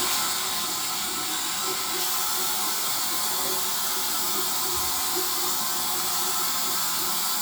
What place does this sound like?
restroom